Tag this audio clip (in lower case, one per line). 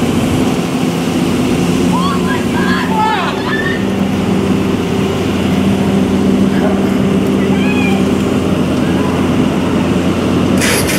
vehicle
speech
outside, urban or man-made
fire
truck